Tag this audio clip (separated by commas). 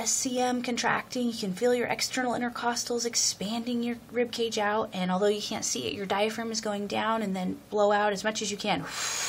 Speech, Breathing